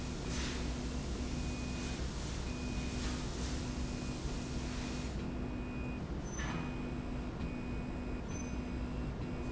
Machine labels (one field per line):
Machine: slide rail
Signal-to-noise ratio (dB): -6 dB